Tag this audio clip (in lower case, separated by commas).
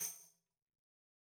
percussion, musical instrument, tambourine, music